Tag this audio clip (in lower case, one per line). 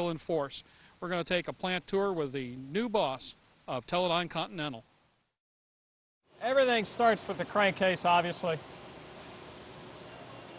speech